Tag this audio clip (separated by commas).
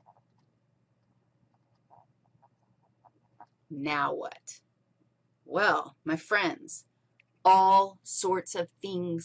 Speech